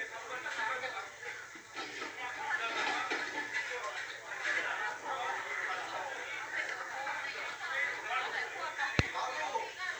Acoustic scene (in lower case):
crowded indoor space